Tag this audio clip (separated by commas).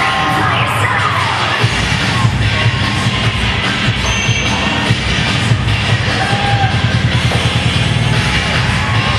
Music